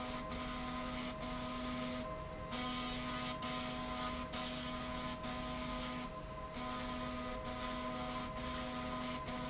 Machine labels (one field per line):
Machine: slide rail